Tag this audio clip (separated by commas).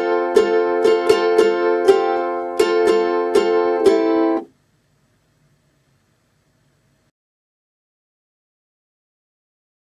Guitar, Musical instrument, Ukulele, Plucked string instrument, Music, Acoustic guitar